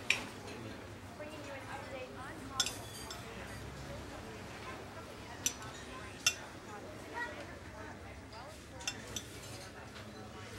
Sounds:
speech
dishes, pots and pans

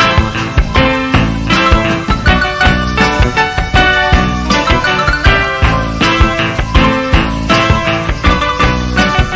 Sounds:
funk
music

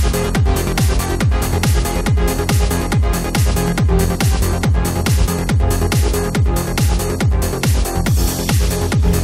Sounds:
techno
music

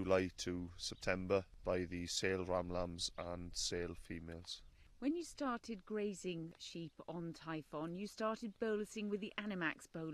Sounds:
speech

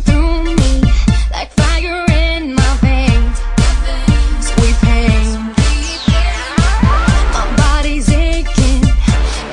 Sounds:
music

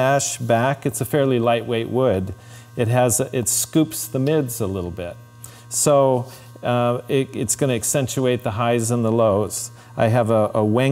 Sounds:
speech

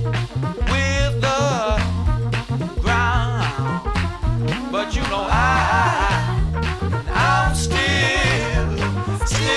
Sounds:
music

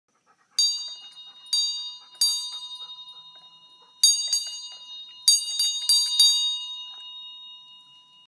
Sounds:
bell

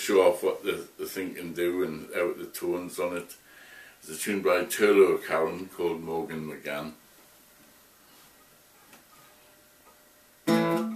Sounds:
speech

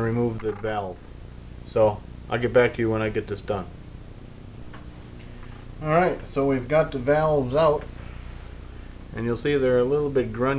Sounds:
speech

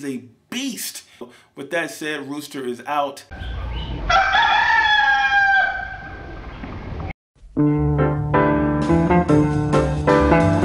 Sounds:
crowing
fowl
chicken

